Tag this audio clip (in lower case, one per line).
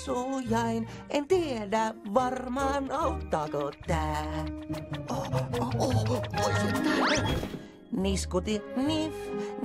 music